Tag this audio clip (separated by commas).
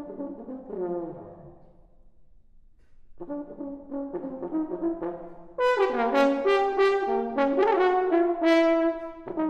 playing french horn, French horn, Brass instrument